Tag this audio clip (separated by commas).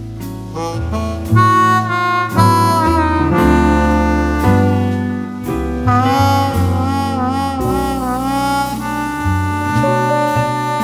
Music, Saxophone